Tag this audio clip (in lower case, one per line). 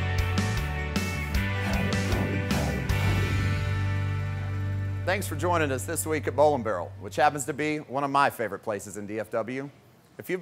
music
speech